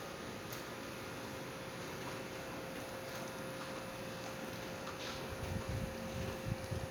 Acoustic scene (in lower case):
residential area